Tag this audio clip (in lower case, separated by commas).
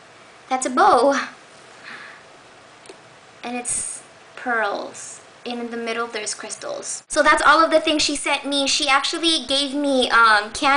speech